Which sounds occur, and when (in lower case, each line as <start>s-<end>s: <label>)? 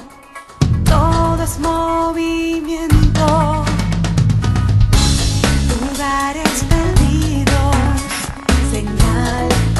0.0s-9.7s: music
0.9s-3.7s: woman speaking
5.7s-8.0s: woman speaking
8.7s-9.7s: woman speaking